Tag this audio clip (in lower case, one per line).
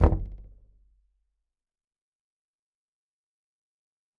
wood
door
domestic sounds
knock
slam